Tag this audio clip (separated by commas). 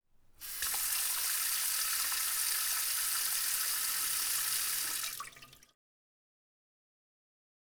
Domestic sounds, Sink (filling or washing), faucet